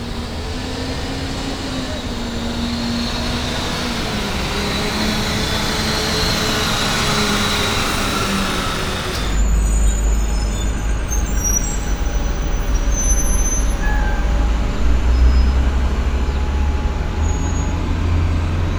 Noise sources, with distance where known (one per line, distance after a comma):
large-sounding engine, near